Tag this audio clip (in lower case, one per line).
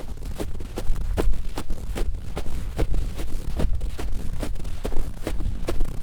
run